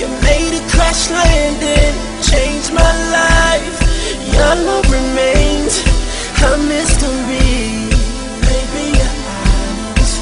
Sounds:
Music

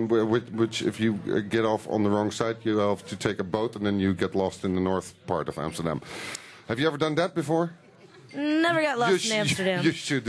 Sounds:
Speech

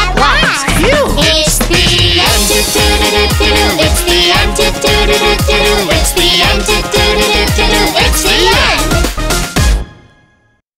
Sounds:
child singing

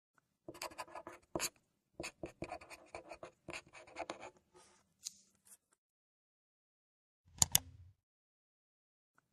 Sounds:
Clicking

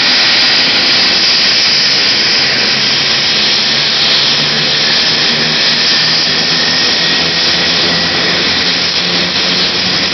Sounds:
Helicopter, Vehicle, Aircraft

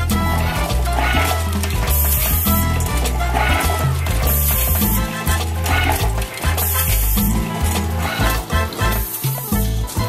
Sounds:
Music

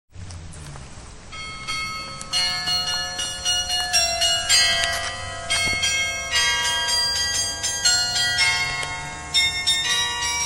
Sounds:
Bell

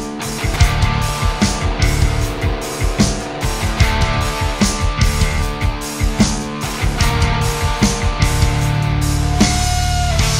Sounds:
Music

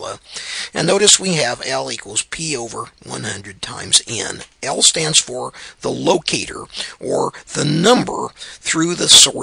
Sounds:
inside a small room, Speech

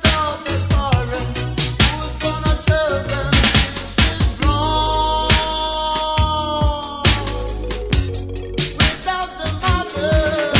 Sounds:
Music

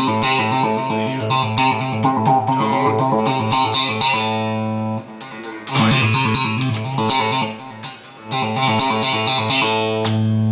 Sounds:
Tapping (guitar technique), Plucked string instrument, Music, Musical instrument, Guitar

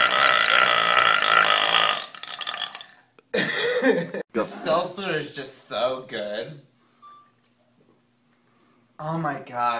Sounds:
Speech, eructation

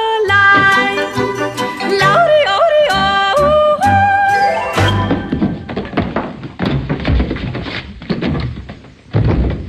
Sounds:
yodelling

